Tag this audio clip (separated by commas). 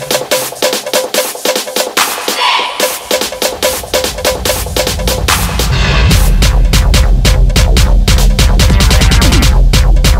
Music, Sampler